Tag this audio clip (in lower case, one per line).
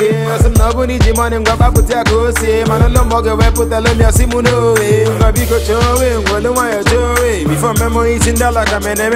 reggae